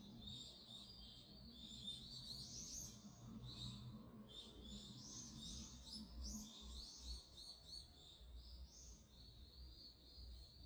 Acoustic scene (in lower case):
park